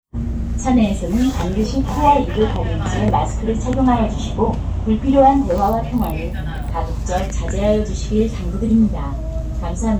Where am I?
on a bus